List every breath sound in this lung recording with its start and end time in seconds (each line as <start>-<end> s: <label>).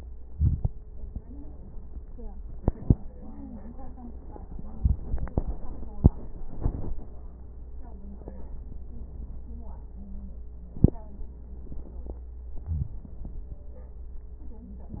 0.24-0.69 s: inhalation
0.24-0.69 s: crackles